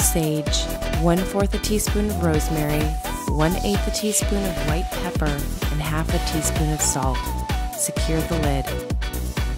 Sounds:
speech
music

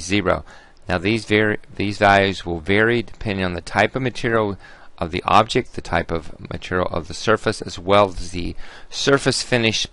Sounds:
speech

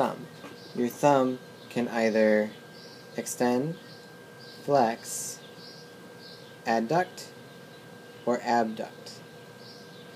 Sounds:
speech

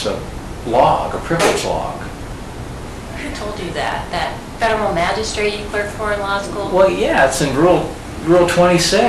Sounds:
inside a small room
speech

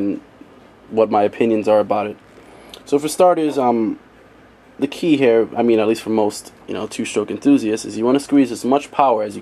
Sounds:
speech

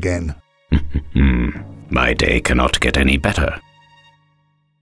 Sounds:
speech
music

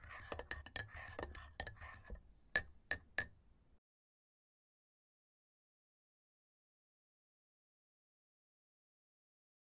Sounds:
stir

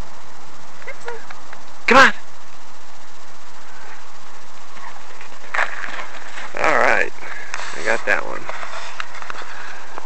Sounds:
speech

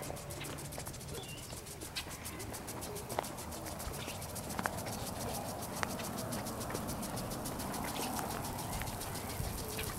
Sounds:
donkey

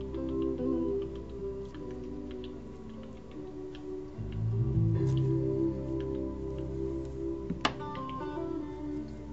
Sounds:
typing
music

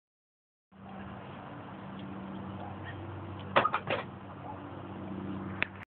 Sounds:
sliding door

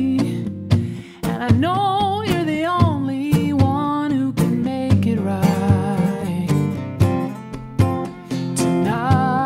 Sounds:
music

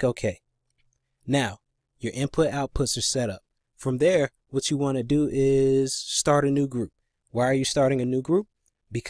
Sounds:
speech

